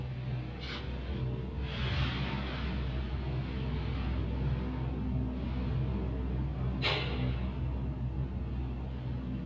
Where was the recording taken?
in an elevator